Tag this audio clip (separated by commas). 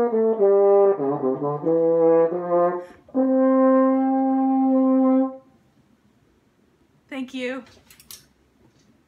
playing french horn